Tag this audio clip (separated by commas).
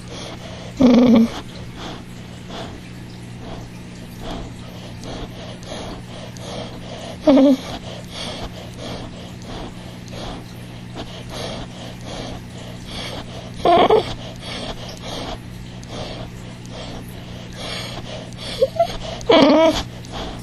Animal, Dog, pets